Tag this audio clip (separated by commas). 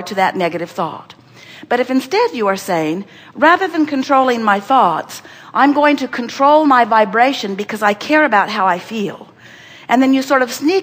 Speech